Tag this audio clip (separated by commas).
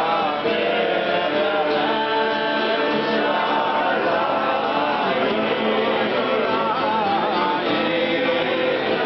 Strum, Acoustic guitar, Guitar, Musical instrument, Plucked string instrument, Music